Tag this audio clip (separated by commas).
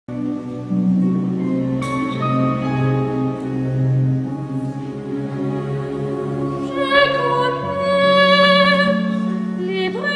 Music, Opera, Singing